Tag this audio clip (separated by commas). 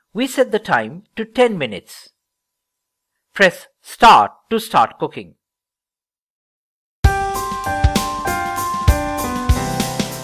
Music, Speech